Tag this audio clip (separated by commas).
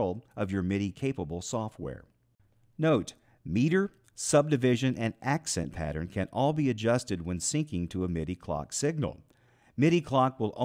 Speech